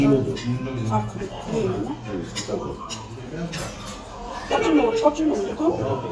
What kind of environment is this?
restaurant